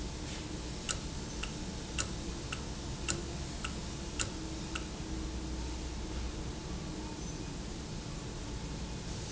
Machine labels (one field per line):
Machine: valve